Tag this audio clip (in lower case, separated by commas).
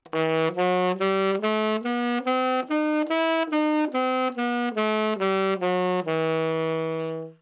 woodwind instrument, musical instrument, music